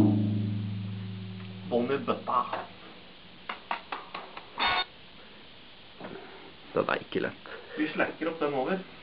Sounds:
speech, music

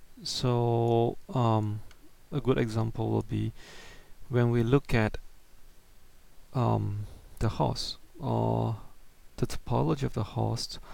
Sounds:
speech

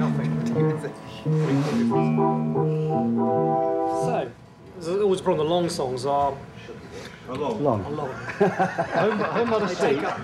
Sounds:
music, speech

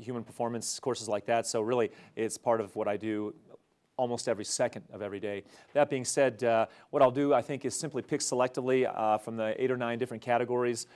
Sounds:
speech

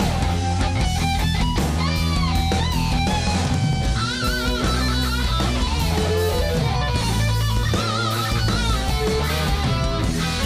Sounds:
music

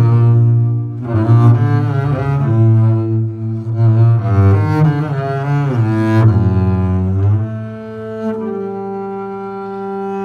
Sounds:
playing cello, bowed string instrument, double bass, musical instrument, cello, music

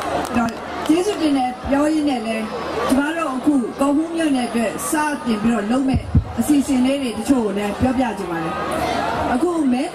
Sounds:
woman speaking, speech, narration

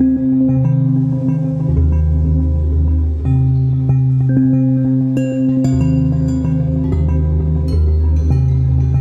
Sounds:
music

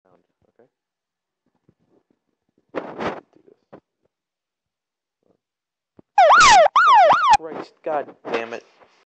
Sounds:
police car (siren), speech, siren

